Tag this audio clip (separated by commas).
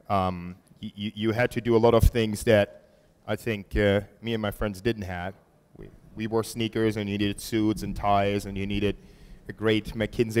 Speech